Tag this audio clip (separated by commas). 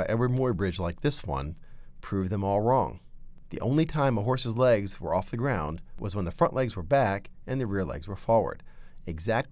Speech